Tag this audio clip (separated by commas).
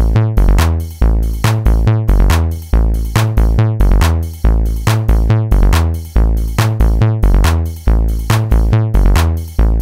Techno, Music